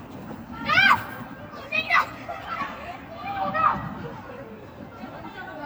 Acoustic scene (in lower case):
residential area